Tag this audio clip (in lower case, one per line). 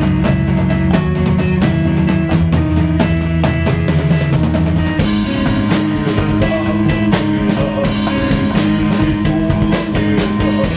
music